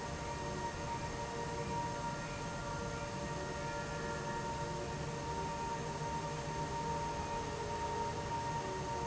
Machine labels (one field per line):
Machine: fan